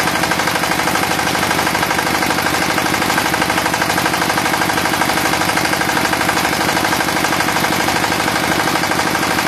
A mid-size motor is idling, vibrating and knocking